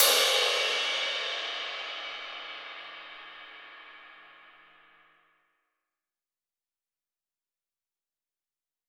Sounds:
Percussion, Crash cymbal, Cymbal, Music, Musical instrument

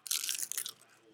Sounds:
Chewing, Crushing

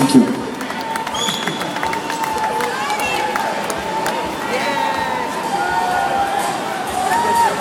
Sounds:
Crowd, Cheering, Human group actions

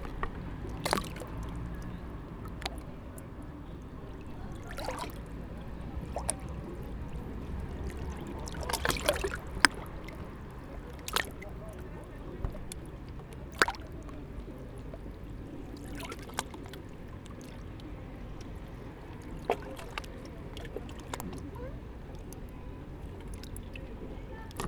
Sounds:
Water, Ocean

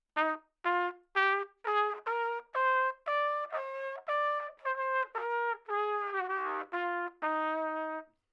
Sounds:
Musical instrument, Brass instrument, Music, Trumpet

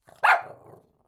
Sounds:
Domestic animals, Dog, Animal, Bark

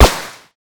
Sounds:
gunfire, Explosion

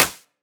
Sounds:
Hands, Clapping

